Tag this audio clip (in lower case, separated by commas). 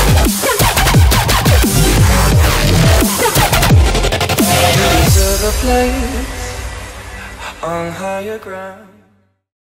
electronic music, dubstep, music